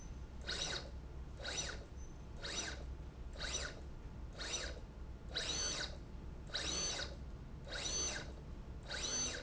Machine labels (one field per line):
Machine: slide rail